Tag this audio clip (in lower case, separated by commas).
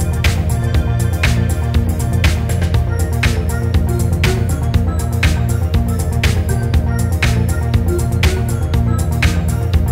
rhythm and blues, music, background music